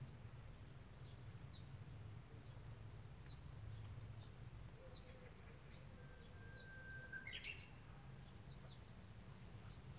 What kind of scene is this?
park